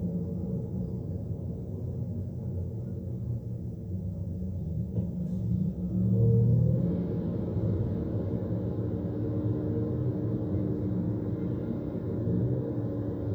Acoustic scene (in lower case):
car